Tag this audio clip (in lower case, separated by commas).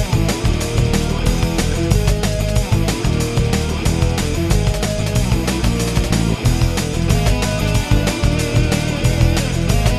music